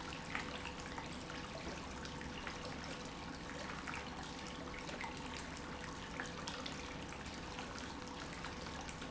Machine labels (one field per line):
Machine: pump